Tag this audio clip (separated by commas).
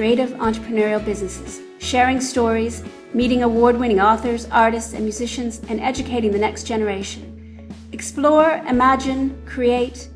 Speech, Music